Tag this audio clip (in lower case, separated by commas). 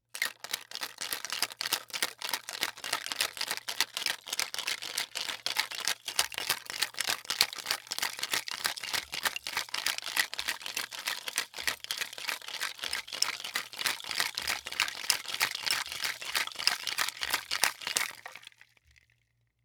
rattle (instrument), music, musical instrument, percussion